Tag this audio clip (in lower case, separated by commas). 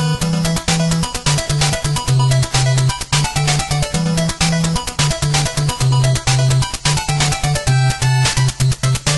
music, video game music